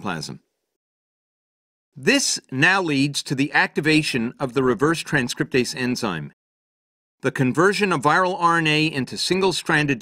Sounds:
Speech

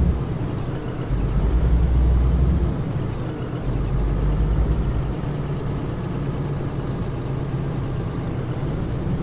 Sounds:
Vehicle

